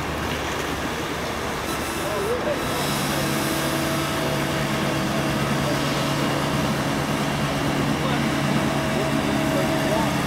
Individuals are having a discussion with each other while heavy equipment is being operated